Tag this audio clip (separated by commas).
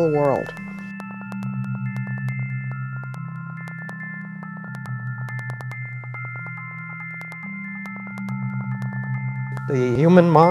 Speech, Music